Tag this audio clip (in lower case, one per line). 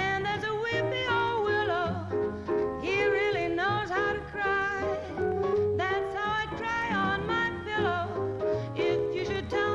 music